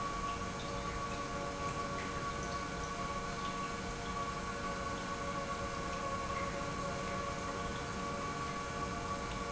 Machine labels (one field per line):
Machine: pump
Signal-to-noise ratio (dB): -6 dB